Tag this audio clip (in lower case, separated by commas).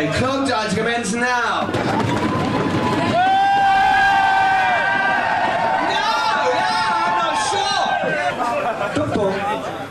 speech